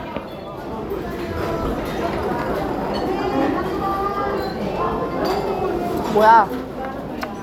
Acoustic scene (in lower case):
crowded indoor space